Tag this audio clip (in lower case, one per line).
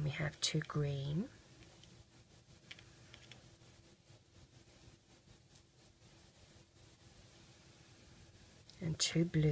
speech
inside a small room